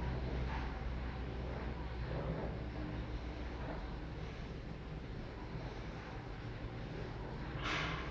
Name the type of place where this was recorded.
elevator